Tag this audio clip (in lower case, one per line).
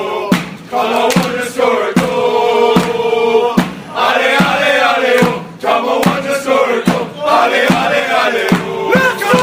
music